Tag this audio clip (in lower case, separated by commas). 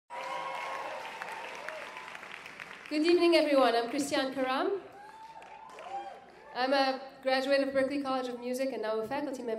speech, female speech